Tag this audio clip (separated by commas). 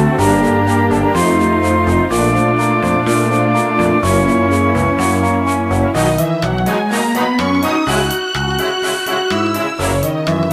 Music, Background music